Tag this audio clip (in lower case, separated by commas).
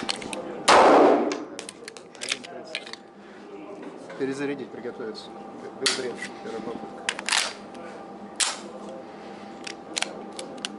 cap gun shooting